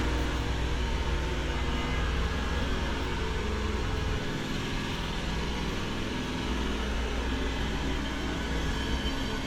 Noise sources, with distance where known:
engine of unclear size, near
unidentified impact machinery, far

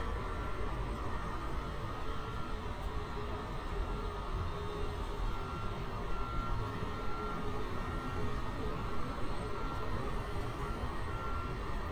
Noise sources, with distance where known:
unidentified alert signal, far

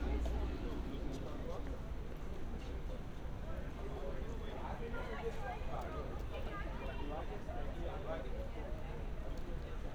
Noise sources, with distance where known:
person or small group talking, near
person or small group shouting, far

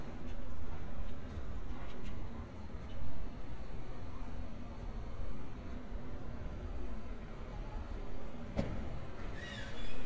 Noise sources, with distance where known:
background noise

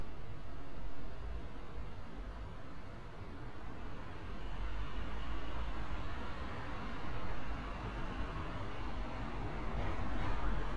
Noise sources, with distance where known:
large-sounding engine

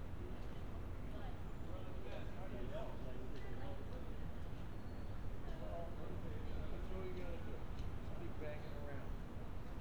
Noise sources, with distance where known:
person or small group talking

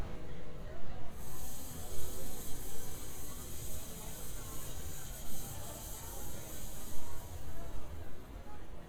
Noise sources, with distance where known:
background noise

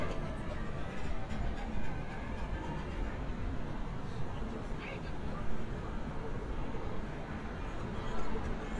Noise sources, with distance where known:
engine of unclear size, far
person or small group talking, far

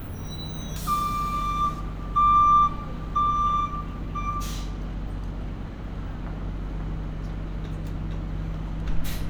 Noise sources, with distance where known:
reverse beeper, near

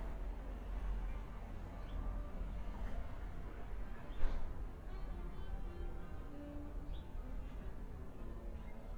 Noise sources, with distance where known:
engine of unclear size
music from a fixed source, far

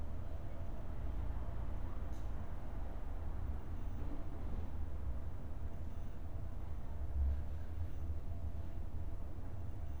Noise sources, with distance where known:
background noise

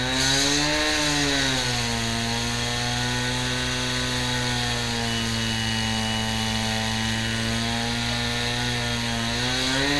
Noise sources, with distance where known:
chainsaw, near

